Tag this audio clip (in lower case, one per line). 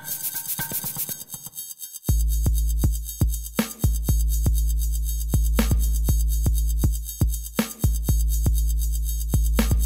music